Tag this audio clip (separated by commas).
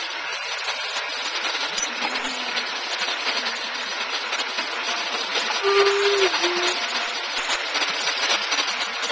Vehicle